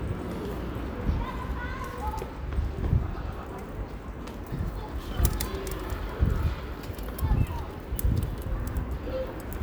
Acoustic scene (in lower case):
residential area